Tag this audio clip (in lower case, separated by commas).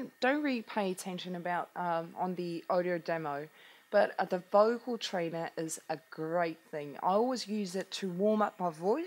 speech